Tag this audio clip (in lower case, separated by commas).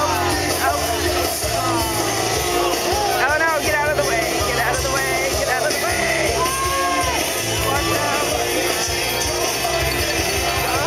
speech, music